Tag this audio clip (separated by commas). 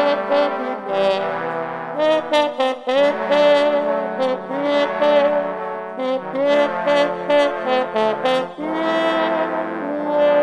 playing trombone